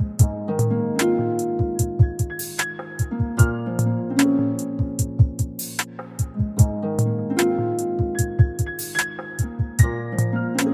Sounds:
music

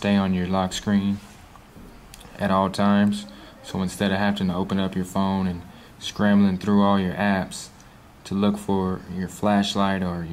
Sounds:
speech

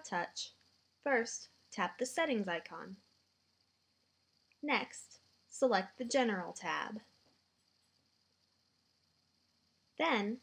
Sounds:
speech

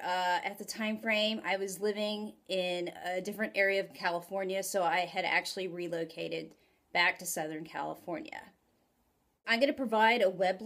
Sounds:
speech

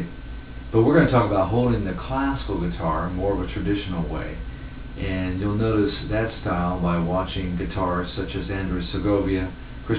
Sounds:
speech

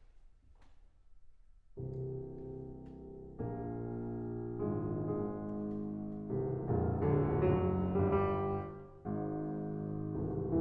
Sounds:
music

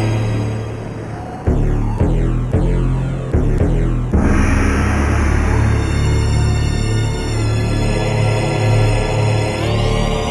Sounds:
music

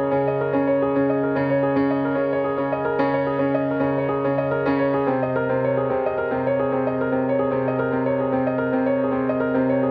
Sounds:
music

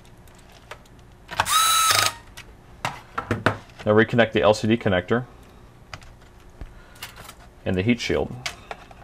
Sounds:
speech, inside a small room

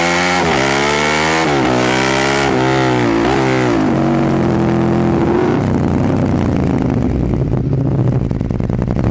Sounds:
motor vehicle (road), vehicle, motorcycle

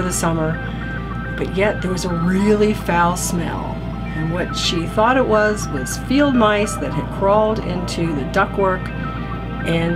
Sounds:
speech, music

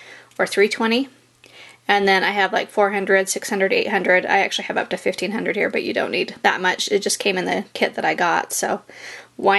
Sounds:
speech

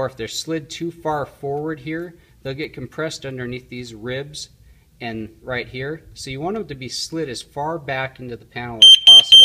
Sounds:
smoke detector, speech, inside a small room

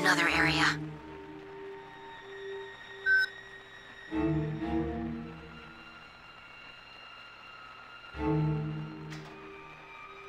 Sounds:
speech, music

